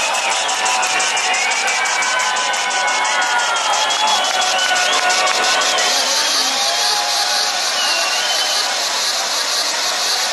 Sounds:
sound effect, music

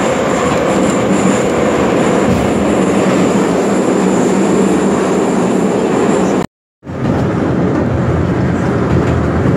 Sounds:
subway

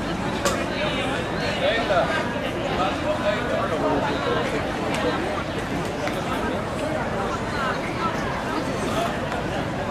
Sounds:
speech

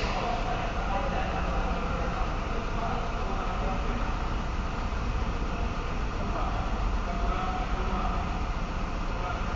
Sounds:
speech

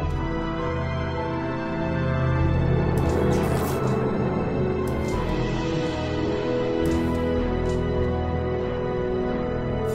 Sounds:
music

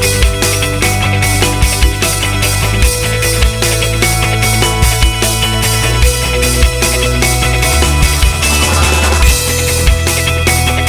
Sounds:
music

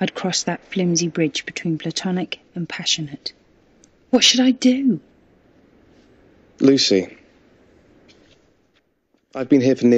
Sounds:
speech

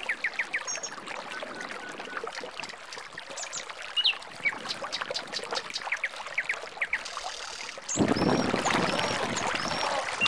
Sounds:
speech, vehicle, kayak rowing, boat, canoe

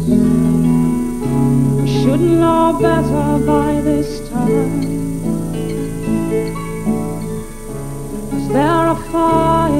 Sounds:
singing, music, harp

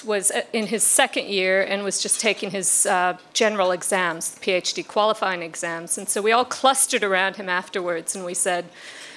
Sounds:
speech

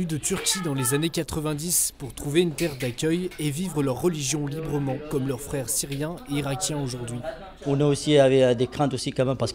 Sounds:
speech

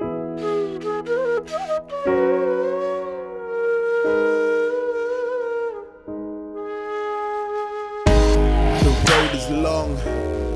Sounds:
hip hop music, rapping, music, woodwind instrument

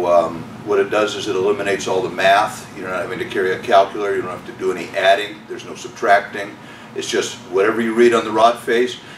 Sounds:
speech

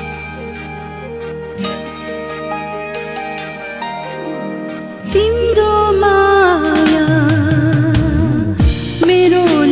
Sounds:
music, tender music

